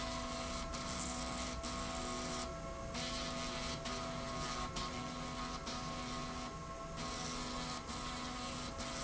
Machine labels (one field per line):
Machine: slide rail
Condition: abnormal